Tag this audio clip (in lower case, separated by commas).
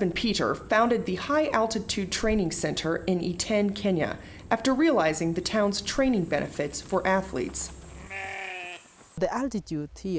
outside, rural or natural, speech